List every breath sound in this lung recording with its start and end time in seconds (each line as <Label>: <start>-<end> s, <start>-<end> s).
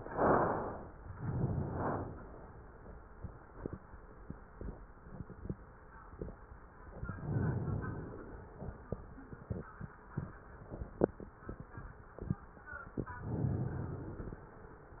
Inhalation: 1.07-2.15 s, 7.00-8.59 s, 12.96-14.55 s